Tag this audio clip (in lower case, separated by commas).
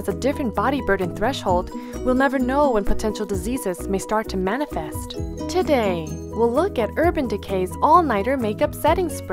speech, music